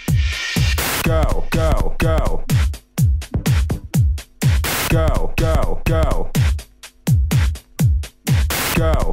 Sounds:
Music, Electronica

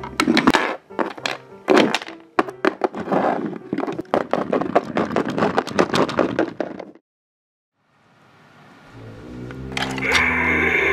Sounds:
Music, inside a small room

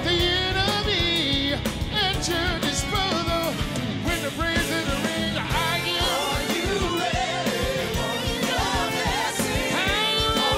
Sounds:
Music

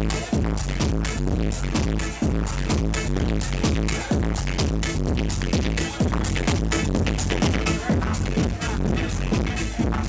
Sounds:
Music, Speech, House music

